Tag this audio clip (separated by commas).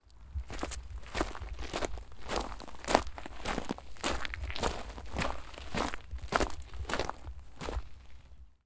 footsteps